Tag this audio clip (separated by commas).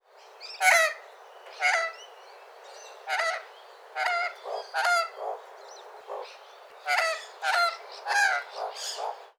Bird vocalization, Animal, Bird, Wild animals